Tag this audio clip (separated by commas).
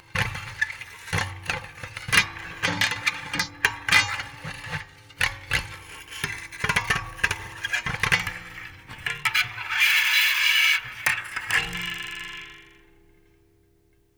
Screech